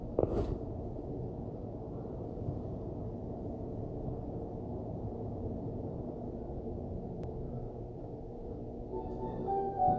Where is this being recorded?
in an elevator